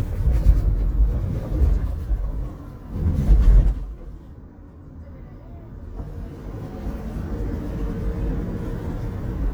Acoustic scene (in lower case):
car